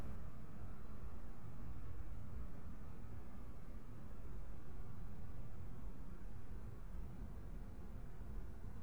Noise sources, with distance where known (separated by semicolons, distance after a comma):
background noise